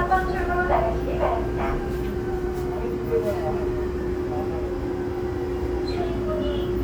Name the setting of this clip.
subway train